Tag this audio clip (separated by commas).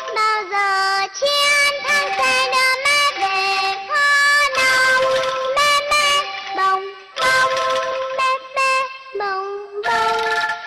Music